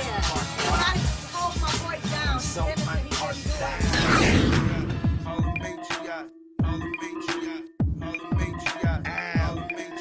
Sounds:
hip hop music, music, speech, rapping

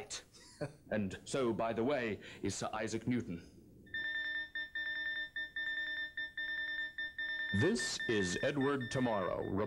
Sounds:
speech, alarm clock

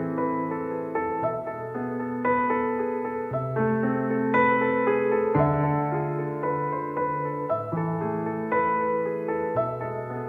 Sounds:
music

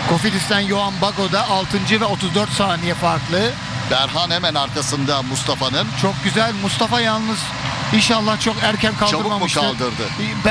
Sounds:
speech

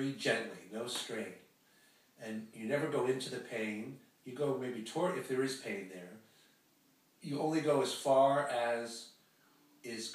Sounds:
speech

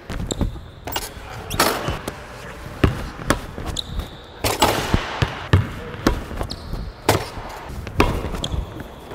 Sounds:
basketball bounce

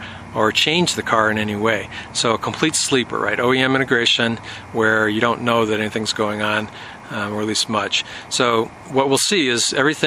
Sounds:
speech

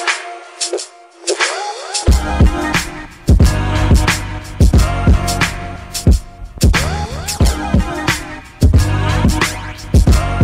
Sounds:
music, sampler

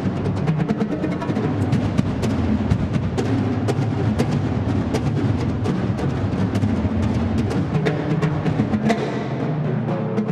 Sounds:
snare drum, rimshot, drum, percussion, playing snare drum, drum roll

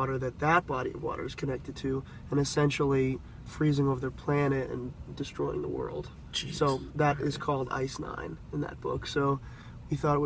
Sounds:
speech

